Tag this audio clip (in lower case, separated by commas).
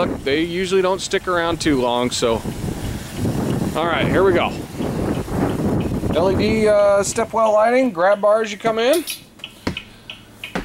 speech